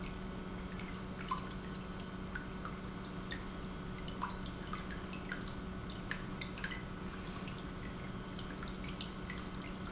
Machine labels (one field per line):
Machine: pump